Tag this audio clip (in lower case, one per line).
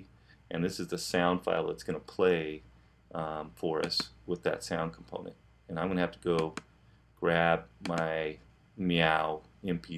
speech